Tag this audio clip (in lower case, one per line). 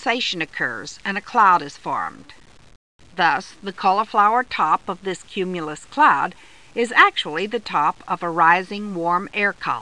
speech